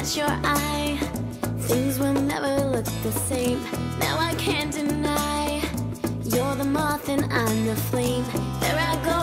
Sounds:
Music, Soul music

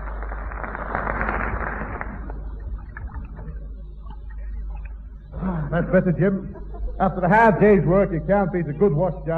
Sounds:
Radio, Speech

